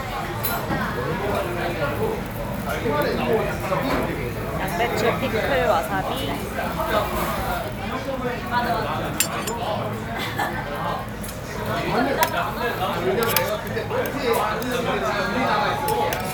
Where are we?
in a restaurant